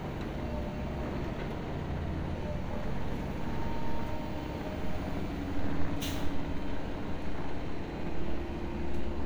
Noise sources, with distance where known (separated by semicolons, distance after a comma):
engine of unclear size, near